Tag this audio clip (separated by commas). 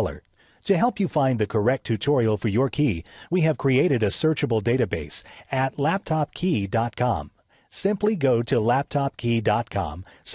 Speech